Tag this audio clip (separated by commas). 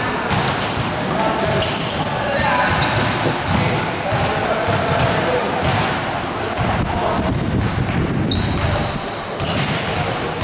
Speech